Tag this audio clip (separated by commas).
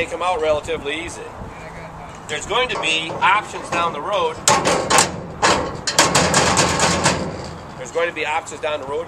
Speech, outside, urban or man-made